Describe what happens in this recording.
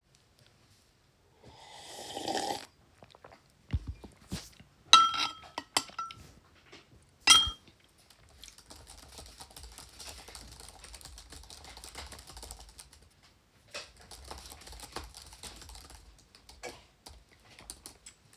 I drank from my glass, ate from my bowl and typed on a laptop keyboard. In the background there is minor rustling sounds from someone sorting packaging.